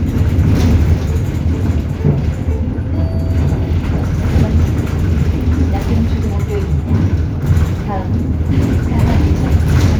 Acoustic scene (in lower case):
bus